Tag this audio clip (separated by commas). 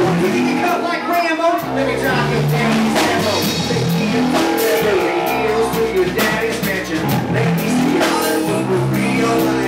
Music, Dubstep